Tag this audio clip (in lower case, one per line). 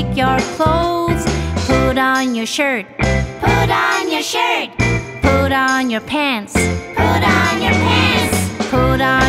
child singing